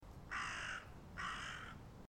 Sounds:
wild animals
animal
bird
crow

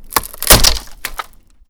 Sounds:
crack

